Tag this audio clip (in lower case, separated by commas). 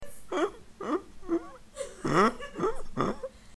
human voice, laughter